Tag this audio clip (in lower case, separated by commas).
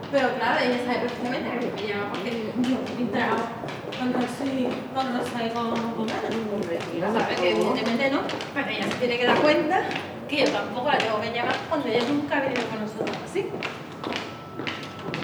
human voice, conversation, speech